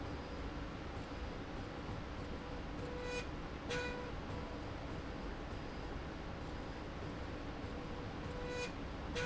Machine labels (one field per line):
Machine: slide rail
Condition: normal